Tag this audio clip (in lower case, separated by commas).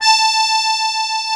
music, musical instrument, accordion